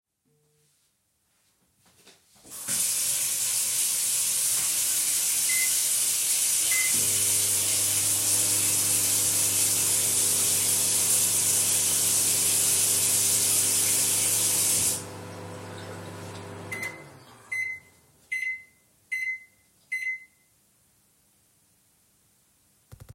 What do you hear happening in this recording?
I used the microwave while the water was running.